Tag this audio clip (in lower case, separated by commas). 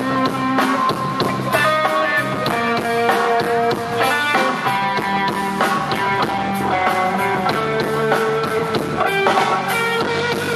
guitar, musical instrument, electric guitar, strum, plucked string instrument, music